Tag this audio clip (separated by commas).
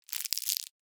Crumpling